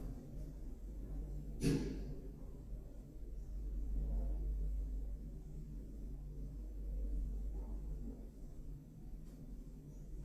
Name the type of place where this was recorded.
elevator